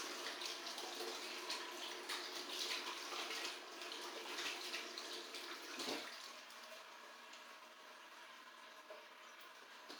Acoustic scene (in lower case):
restroom